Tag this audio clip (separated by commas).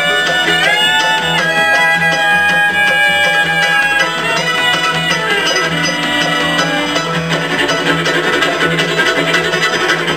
Musical instrument